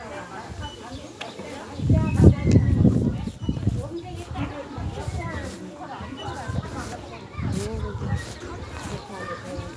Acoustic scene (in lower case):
residential area